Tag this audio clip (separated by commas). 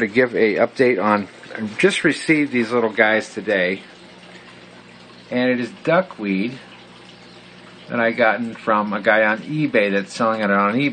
Speech